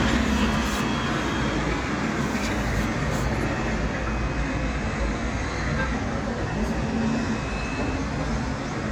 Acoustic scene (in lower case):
residential area